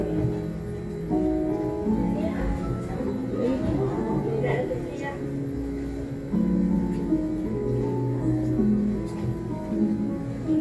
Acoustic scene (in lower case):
crowded indoor space